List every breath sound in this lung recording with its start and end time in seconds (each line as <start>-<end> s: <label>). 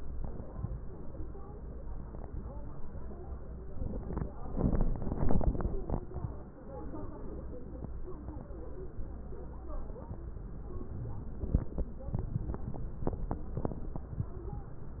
10.88-11.29 s: wheeze